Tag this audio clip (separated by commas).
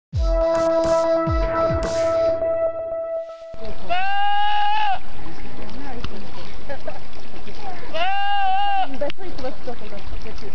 livestock, Animal, Goat